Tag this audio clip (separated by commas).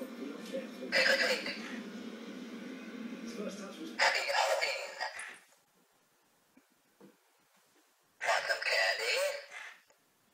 Speech